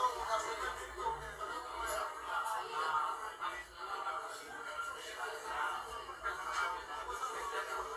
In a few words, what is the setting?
crowded indoor space